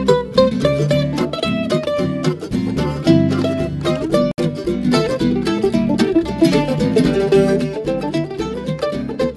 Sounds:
musical instrument, plucked string instrument, music, mandolin

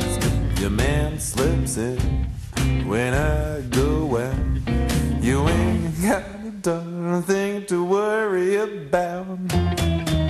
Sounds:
music

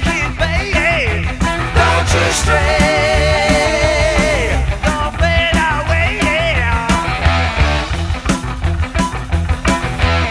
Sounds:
rock music, independent music, heavy metal, music

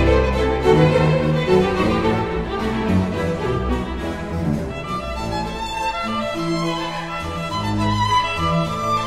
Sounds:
fiddle, music, musical instrument

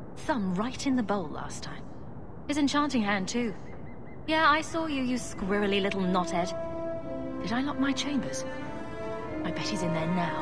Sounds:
speech, music

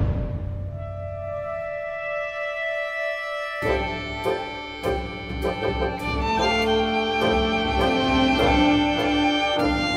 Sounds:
music

